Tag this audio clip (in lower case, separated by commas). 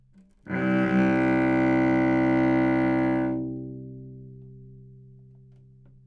musical instrument, bowed string instrument, music